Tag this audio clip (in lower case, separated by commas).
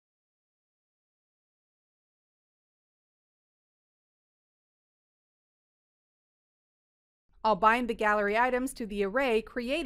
speech